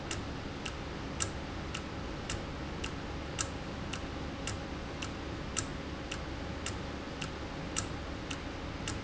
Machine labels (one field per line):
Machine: valve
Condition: normal